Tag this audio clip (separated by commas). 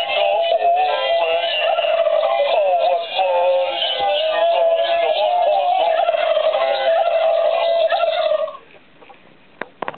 Fowl, Turkey, Gobble